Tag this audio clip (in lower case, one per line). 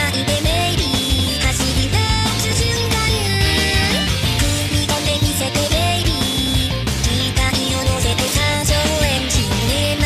music